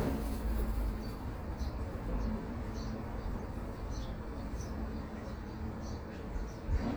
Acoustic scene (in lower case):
residential area